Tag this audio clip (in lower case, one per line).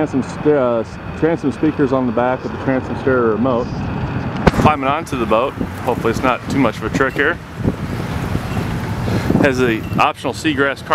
vehicle
speech